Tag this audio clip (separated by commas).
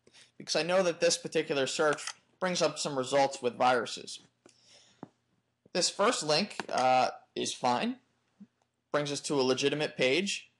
Speech